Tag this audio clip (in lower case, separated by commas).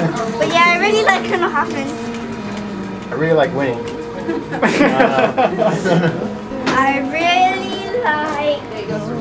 music, speech